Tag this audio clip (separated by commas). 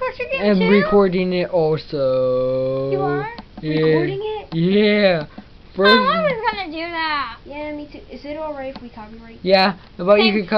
Speech, inside a small room